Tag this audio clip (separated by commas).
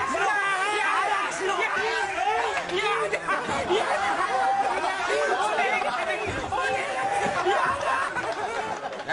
Speech